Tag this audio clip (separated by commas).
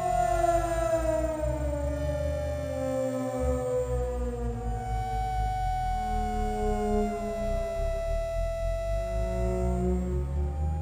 playing theremin